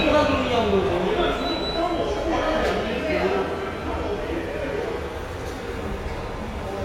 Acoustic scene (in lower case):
subway station